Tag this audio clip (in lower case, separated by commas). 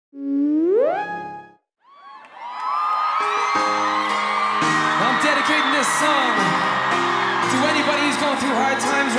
speech, music